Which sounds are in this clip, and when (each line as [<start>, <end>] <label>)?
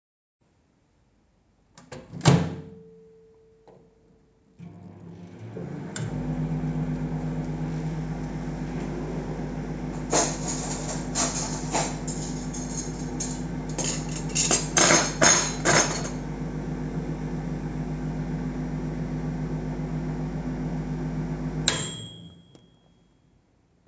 [1.79, 2.80] microwave
[4.57, 22.44] microwave
[9.98, 16.15] cutlery and dishes